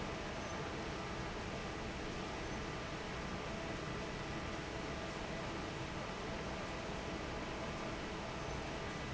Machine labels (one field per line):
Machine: fan